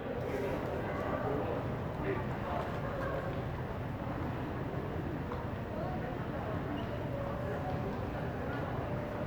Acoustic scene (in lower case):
crowded indoor space